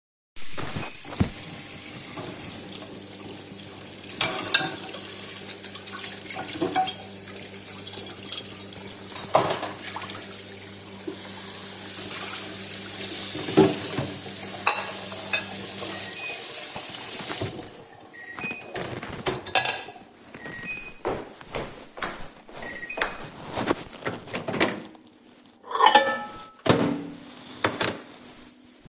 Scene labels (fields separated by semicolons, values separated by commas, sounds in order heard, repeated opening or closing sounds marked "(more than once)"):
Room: kitchen; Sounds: running water, microwave, cutlery and dishes, footsteps